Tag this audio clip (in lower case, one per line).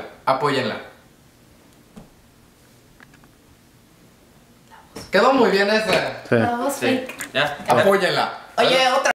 speech